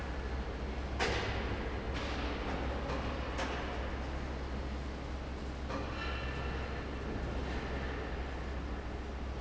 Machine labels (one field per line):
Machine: fan